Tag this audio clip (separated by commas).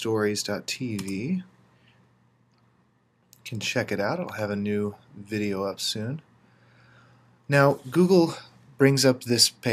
Speech